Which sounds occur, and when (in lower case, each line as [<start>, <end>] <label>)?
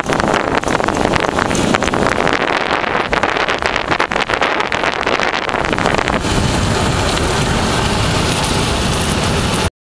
[0.00, 6.19] wind noise (microphone)
[0.00, 9.69] bicycle
[0.00, 9.69] wind
[7.12, 7.23] tick